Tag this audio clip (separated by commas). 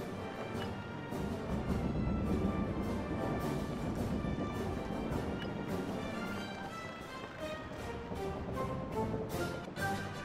Music